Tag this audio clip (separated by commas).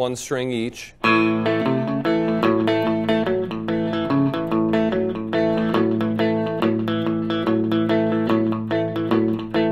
Music, Speech, Guitar, Country, Plucked string instrument, inside a small room, Musical instrument